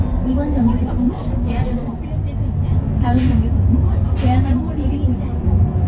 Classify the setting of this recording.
bus